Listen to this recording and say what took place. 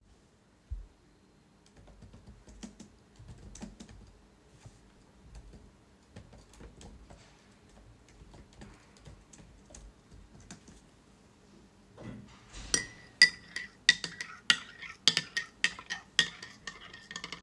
I started typing on my keyboard, then stirred my coffee.